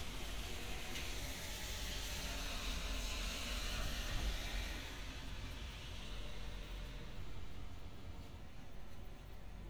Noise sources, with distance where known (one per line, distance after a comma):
background noise